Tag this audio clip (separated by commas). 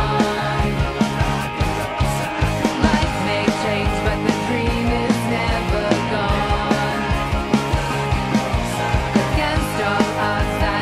Music, Rock and roll